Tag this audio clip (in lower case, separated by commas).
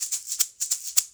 percussion, rattle (instrument), music, musical instrument